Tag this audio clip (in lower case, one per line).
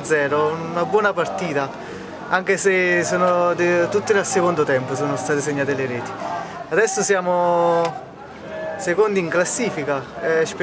speech